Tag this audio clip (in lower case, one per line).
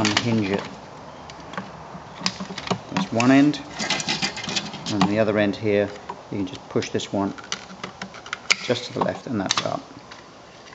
speech
inside a small room